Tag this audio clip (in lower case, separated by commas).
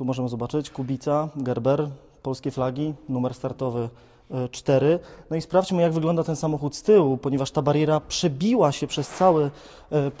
speech